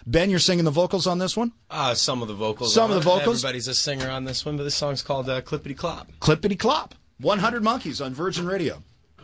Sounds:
Speech

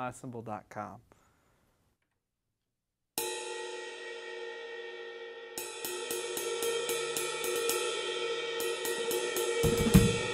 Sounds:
Music, Speech, Snare drum

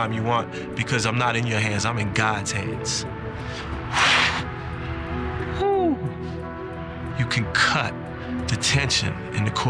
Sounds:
Speech, man speaking, monologue, Music

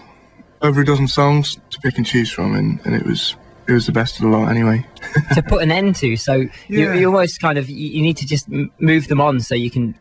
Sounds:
Speech

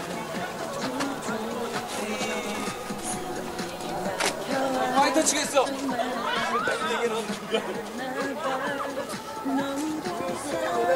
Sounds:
Speech, Music

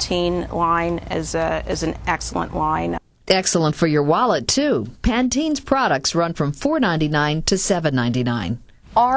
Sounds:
Conversation

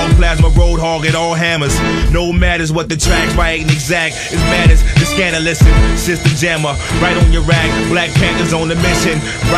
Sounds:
Music, Hip hop music

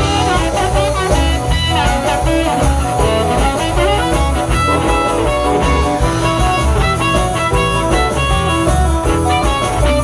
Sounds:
Blues, Music

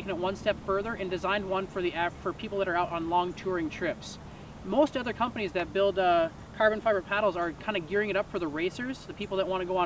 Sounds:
Speech

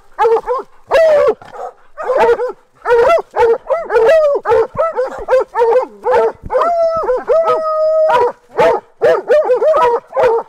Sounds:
dog baying

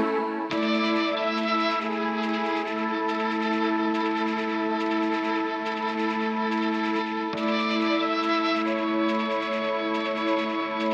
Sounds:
Music, Sampler

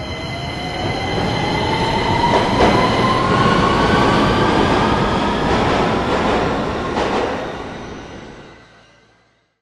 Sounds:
Vehicle

